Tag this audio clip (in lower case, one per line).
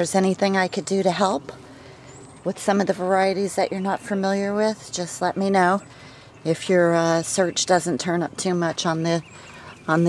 speech